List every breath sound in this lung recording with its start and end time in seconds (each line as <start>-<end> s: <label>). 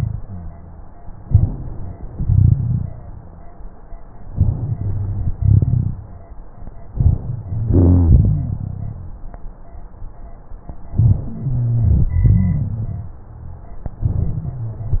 0.21-0.95 s: wheeze
1.27-2.07 s: inhalation
2.14-2.94 s: exhalation
2.14-2.94 s: rhonchi
4.34-5.34 s: inhalation
4.34-5.34 s: rhonchi
5.39-6.19 s: exhalation
5.39-6.19 s: rhonchi
7.00-7.68 s: inhalation
7.23-7.68 s: wheeze
7.72-8.62 s: exhalation
7.72-9.20 s: rhonchi
10.95-12.11 s: inhalation
10.95-12.11 s: wheeze
12.18-13.15 s: exhalation
12.18-13.15 s: rhonchi
14.12-15.00 s: inhalation
14.12-15.00 s: wheeze